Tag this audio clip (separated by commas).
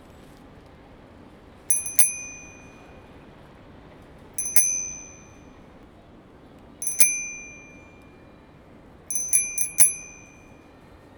Bicycle, Vehicle, Bicycle bell, Bell, Alarm